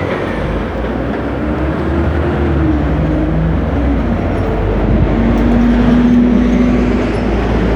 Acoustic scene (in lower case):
street